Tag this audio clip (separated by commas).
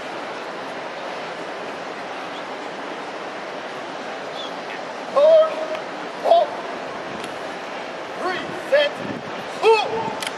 Speech